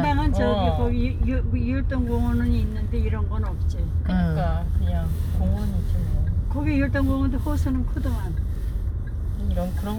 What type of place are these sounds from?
car